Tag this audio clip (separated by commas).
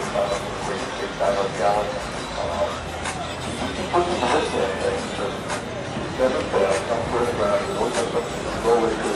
Speech, Music